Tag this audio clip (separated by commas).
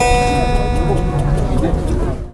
Music, Musical instrument, Keyboard (musical)